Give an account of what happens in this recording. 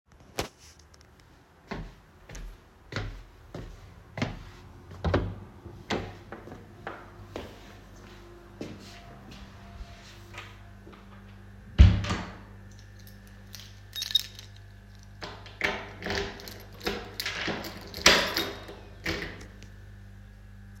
I moved to my door, opened the door to leave my room, then closed the door, and put the keys inside the lock.